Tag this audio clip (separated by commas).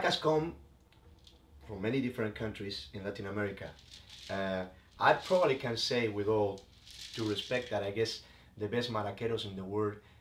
Speech